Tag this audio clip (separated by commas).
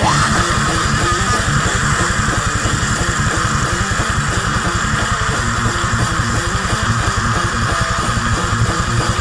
Guitar, Strum, Musical instrument, Bass guitar, Acoustic guitar, Electric guitar, Plucked string instrument, Music